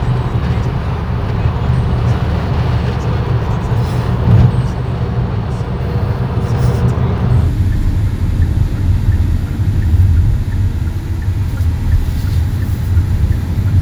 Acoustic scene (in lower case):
car